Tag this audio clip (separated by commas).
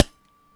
Wood